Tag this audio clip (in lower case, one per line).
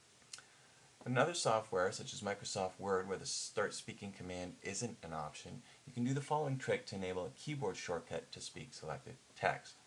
speech